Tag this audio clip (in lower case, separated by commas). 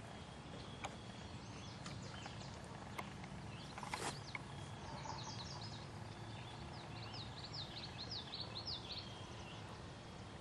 animal